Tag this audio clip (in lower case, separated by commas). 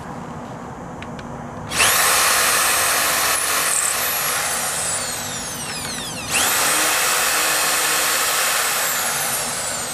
inside a small room